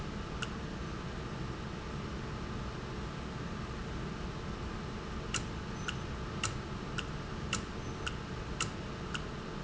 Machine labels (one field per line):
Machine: valve